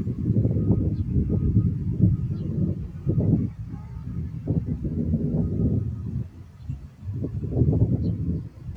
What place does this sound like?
park